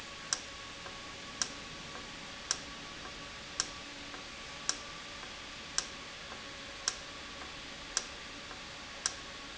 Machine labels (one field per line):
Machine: valve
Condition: normal